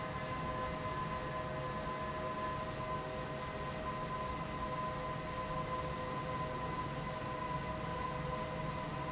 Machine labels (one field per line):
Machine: fan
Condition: abnormal